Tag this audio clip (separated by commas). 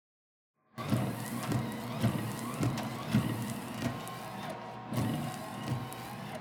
Vehicle, Motor vehicle (road), Car